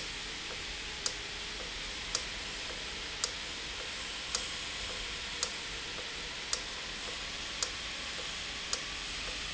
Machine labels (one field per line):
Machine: valve